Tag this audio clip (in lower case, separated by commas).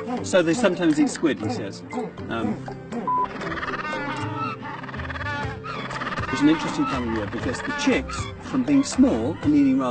penguins braying